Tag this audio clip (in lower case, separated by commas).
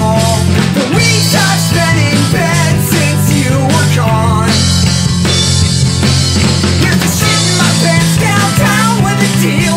music